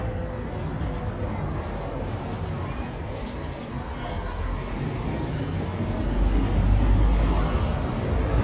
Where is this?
in a residential area